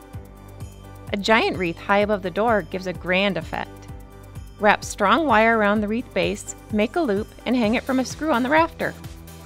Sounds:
Music, Speech

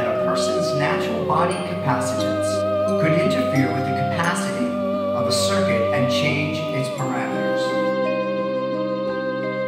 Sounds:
Speech, Music

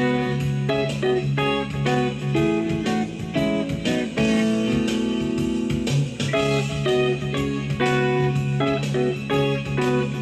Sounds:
Musical instrument, Plucked string instrument, Music, Guitar, inside a small room

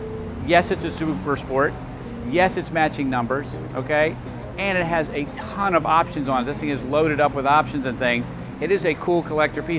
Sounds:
Speech, Music

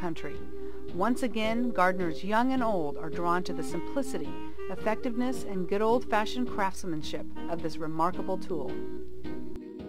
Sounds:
Music, Speech

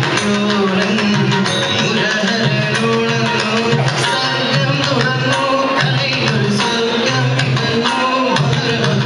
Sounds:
Music, Male singing

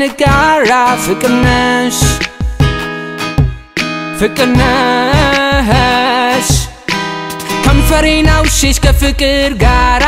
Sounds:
Music, Blues, Pop music

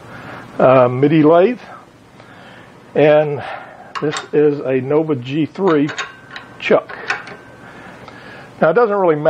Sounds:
Speech, Tools

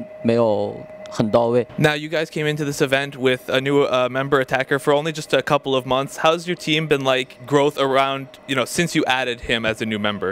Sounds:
Speech

